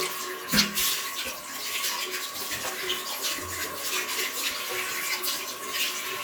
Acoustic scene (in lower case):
restroom